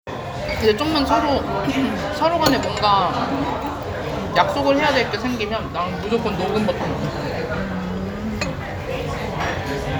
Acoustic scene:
crowded indoor space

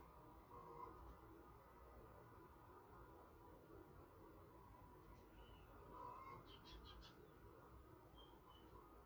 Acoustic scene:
park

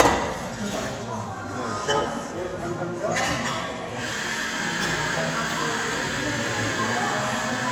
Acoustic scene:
cafe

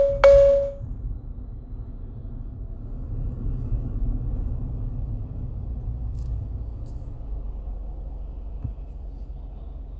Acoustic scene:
car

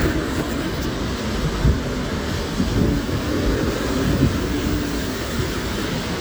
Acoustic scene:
street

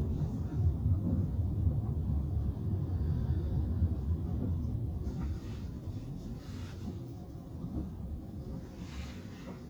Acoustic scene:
car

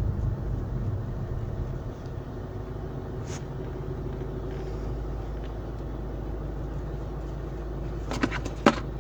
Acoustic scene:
car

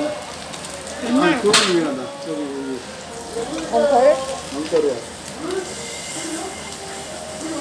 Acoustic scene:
restaurant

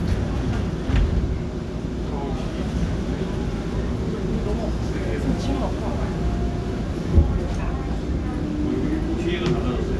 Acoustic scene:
subway train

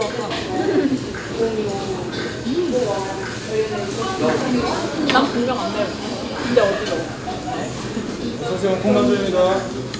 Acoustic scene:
restaurant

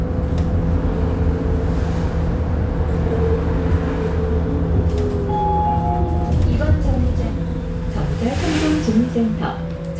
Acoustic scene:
bus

